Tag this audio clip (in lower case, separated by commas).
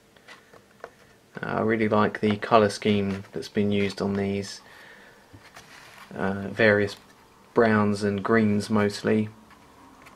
speech, inside a small room